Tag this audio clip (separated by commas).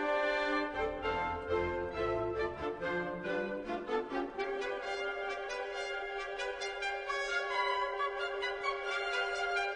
Music